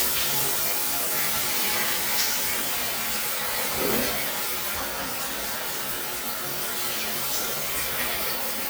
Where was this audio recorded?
in a restroom